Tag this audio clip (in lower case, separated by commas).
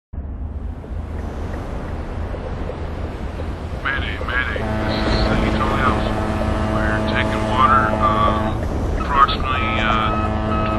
speech, vehicle, ship, outside, rural or natural